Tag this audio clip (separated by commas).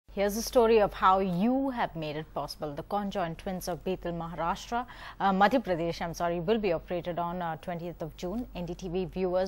Speech